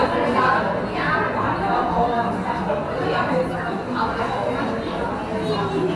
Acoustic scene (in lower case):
cafe